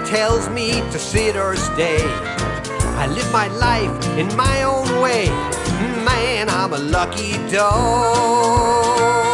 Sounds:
Music

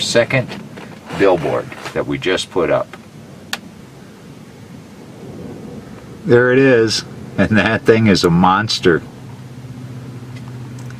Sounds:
Speech

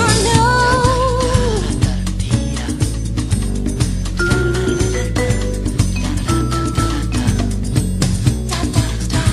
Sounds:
Theme music, Music

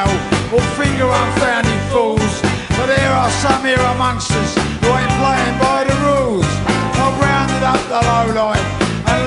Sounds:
Music

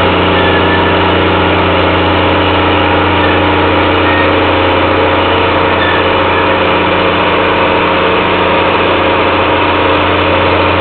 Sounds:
Vehicle

